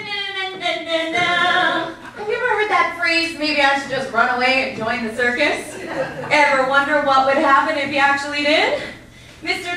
A woman making some musical sounds with her mouth and continues to give a speech